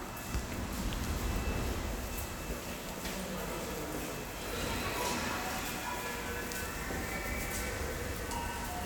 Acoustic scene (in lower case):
subway station